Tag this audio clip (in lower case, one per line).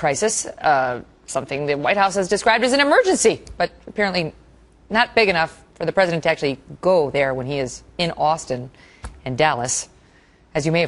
speech
television